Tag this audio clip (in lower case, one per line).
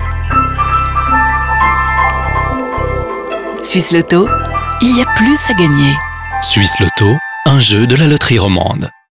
speech
music